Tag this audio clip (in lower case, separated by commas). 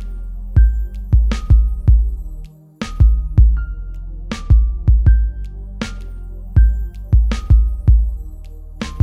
soundtrack music, music